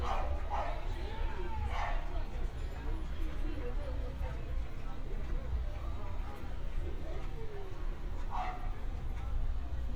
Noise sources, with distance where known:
person or small group talking, near
dog barking or whining, near

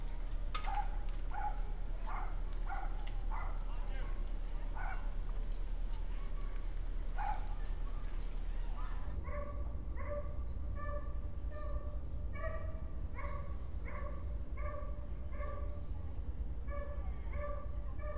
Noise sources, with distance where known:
dog barking or whining

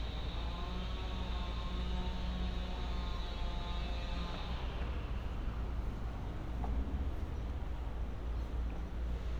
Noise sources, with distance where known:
unidentified powered saw

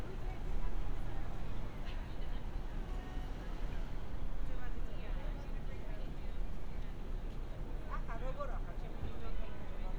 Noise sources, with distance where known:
car horn, far
person or small group talking

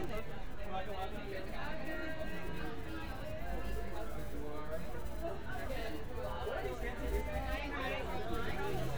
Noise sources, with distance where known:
music from an unclear source
person or small group talking, near

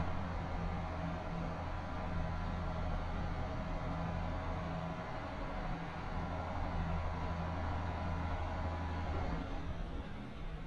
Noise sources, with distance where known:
engine of unclear size

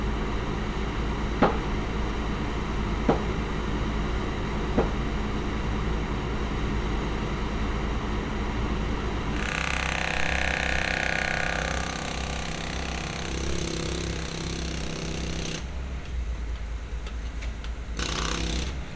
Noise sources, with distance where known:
unidentified impact machinery

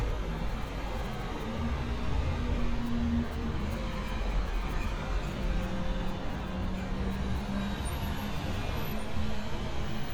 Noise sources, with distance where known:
large-sounding engine

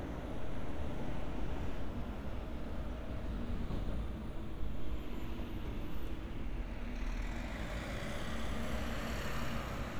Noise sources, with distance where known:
large-sounding engine, near

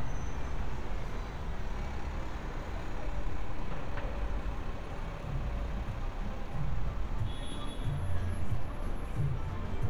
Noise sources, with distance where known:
large-sounding engine, near
car horn
music from an unclear source, near

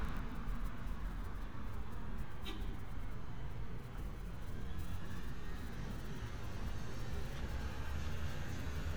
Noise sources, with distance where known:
medium-sounding engine
car horn, near

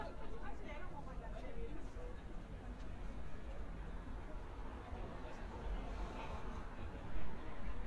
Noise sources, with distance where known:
person or small group talking, near

